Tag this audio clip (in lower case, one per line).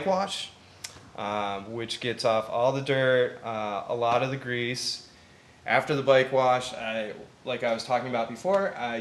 speech